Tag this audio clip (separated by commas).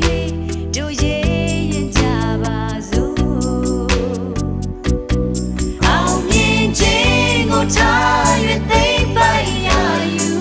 Gospel music, Singing, Music